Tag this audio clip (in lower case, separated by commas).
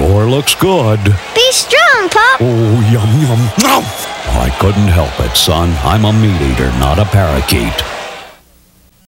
speech